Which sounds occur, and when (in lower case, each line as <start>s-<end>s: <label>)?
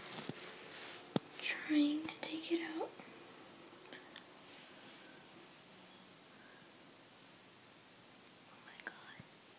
0.0s-0.3s: generic impact sounds
0.0s-9.5s: mechanisms
0.3s-1.0s: surface contact
1.1s-1.2s: generic impact sounds
1.4s-2.9s: kid speaking
2.9s-3.1s: generic impact sounds
3.8s-4.2s: generic impact sounds
4.4s-5.0s: surface contact
5.9s-6.0s: squeal
7.0s-7.0s: tick
7.2s-7.3s: generic impact sounds
8.0s-8.3s: generic impact sounds
8.4s-9.2s: whispering
8.8s-8.9s: generic impact sounds
9.1s-9.3s: generic impact sounds